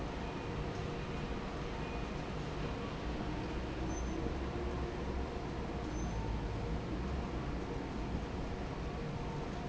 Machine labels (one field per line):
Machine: fan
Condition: normal